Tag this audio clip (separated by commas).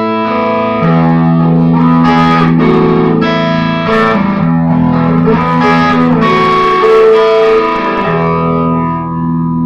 Musical instrument, Music, Guitar, Effects unit